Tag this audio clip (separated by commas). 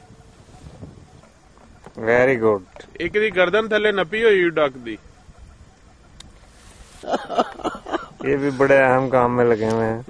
Speech